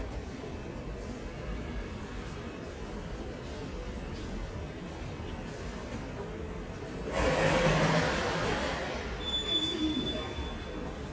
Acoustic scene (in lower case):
subway station